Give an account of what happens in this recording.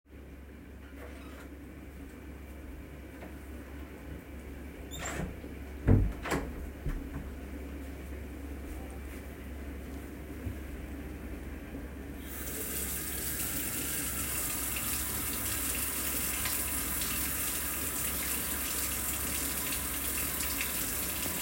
Opening and closing the kitchen door before turning on the water tap, while the dishwasher runs in the background.